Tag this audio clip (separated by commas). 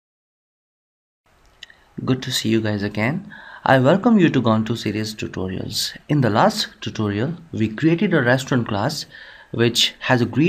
inside a small room, Speech